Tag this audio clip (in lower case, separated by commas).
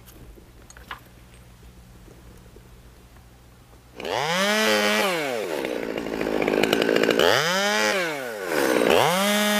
chainsawing trees, chainsaw